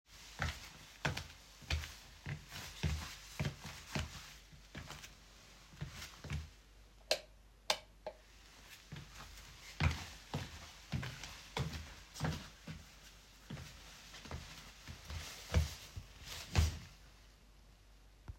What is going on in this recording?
I placed the phone on a nightstand and walked toward the door. I flipped the light switch off and then on again before walking back toward the device.